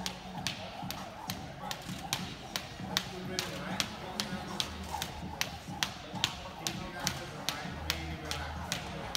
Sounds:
rope skipping

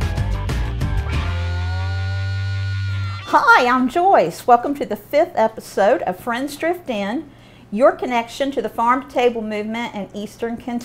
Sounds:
music
speech

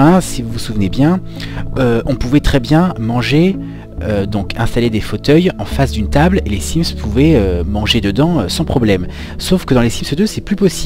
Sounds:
music
speech

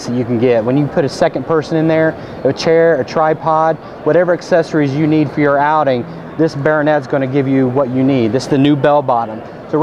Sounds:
speech

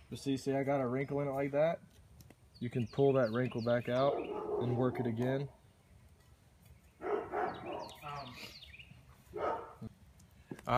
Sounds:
speech
outside, rural or natural

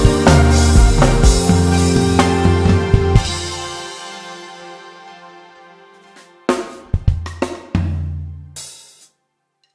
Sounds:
cymbal
playing cymbal
hi-hat

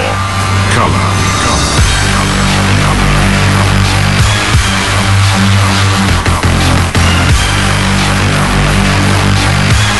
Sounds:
speech
music

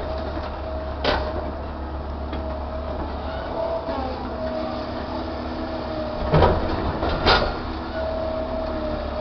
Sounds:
vehicle

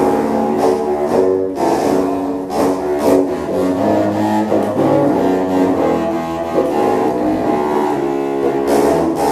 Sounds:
playing bassoon

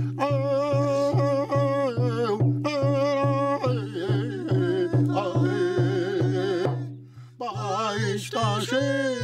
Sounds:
music

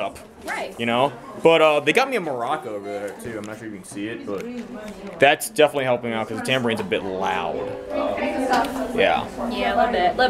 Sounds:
speech

